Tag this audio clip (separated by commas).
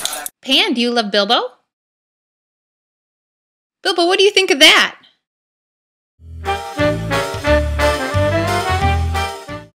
Music, Speech